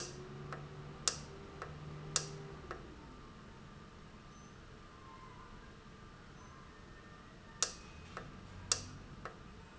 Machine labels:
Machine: valve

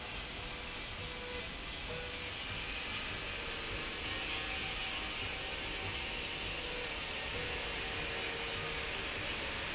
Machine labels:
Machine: slide rail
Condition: normal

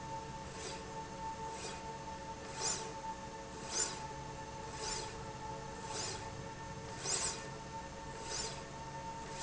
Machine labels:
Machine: slide rail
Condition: normal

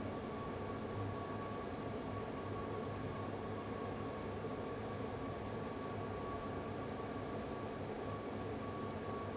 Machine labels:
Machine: fan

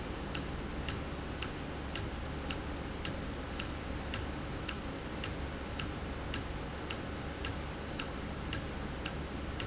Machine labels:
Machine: valve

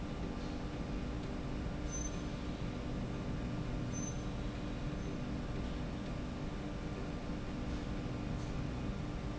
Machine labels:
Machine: slide rail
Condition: normal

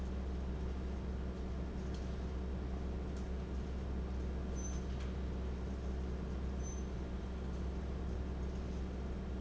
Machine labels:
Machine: fan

